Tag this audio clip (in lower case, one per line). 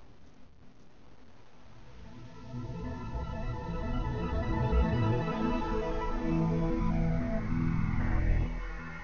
sound effect
music